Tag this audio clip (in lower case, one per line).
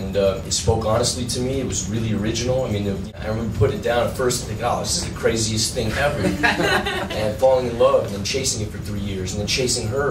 speech